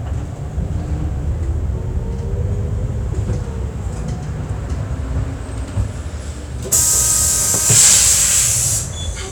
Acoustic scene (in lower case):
bus